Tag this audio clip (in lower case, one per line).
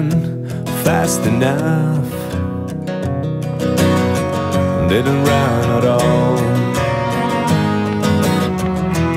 funk
music